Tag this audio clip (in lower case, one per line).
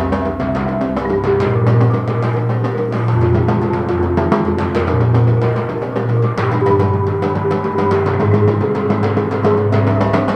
playing tympani